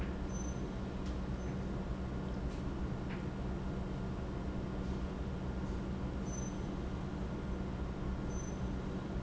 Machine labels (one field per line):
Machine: pump